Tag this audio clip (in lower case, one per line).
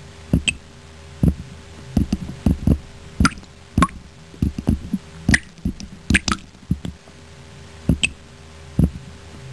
water